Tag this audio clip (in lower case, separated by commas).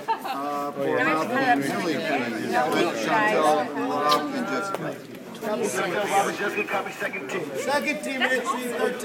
speech